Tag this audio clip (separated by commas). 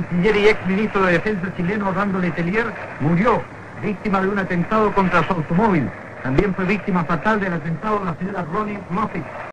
Speech, Radio